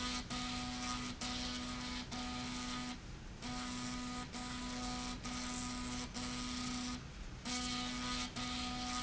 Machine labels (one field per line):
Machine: slide rail